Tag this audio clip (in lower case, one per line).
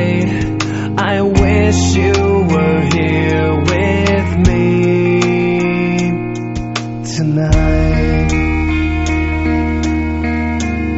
music